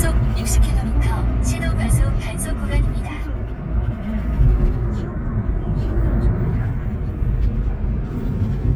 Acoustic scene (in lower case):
car